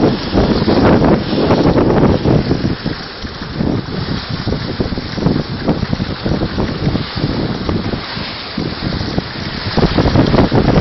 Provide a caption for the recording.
Water is splashing and wind is rushing by